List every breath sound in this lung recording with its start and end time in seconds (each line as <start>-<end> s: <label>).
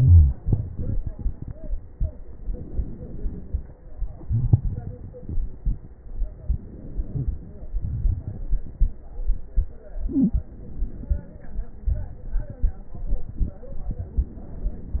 2.29-3.77 s: inhalation
3.79-5.97 s: exhalation
6.41-7.72 s: inhalation
7.79-8.95 s: exhalation
7.79-8.95 s: crackles
10.46-11.68 s: inhalation
11.86-14.09 s: exhalation
11.86-14.09 s: crackles